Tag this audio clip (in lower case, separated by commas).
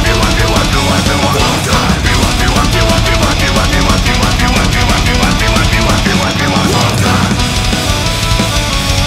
funk, theme music, music